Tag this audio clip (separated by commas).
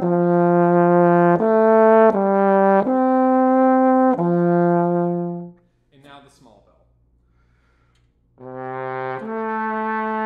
Music, Speech